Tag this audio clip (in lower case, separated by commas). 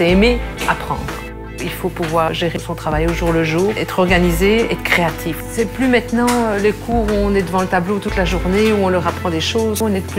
music, speech